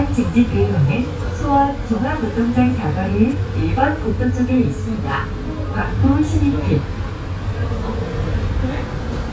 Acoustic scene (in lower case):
bus